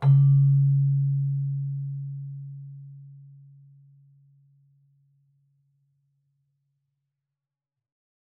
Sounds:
keyboard (musical), music, musical instrument

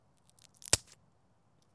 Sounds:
crack

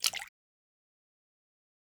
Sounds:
splash, liquid

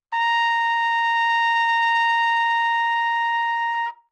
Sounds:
musical instrument, trumpet, music, brass instrument

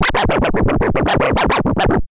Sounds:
scratching (performance technique), musical instrument, music

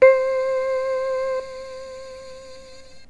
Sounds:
keyboard (musical), musical instrument, music

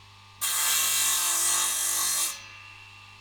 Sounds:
tools, sawing

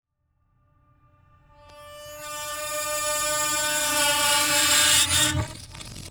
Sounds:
screech

